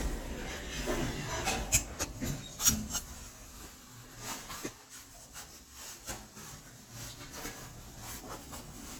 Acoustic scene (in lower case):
elevator